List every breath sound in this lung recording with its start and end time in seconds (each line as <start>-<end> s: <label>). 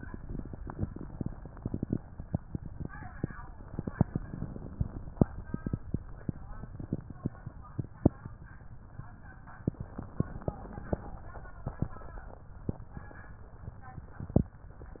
3.63-5.12 s: inhalation
3.63-5.12 s: crackles
9.67-11.17 s: inhalation
9.67-11.17 s: crackles